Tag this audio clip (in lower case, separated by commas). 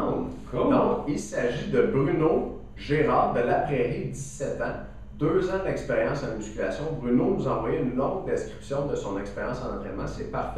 speech